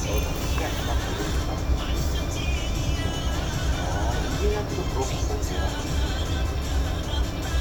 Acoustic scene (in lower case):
bus